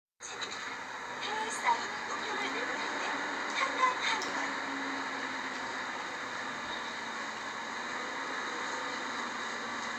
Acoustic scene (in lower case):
bus